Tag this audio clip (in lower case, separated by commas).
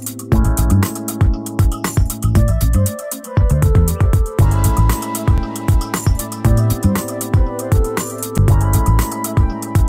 music, independent music